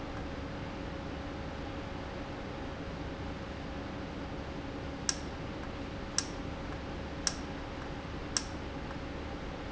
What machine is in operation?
valve